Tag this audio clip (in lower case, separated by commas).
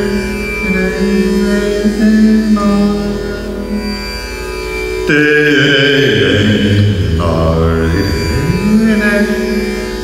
music, musical instrument, carnatic music